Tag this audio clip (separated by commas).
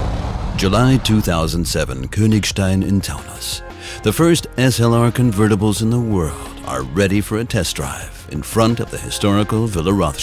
Speech, Music